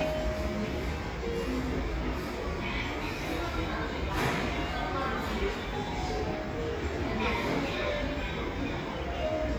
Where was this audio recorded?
in a cafe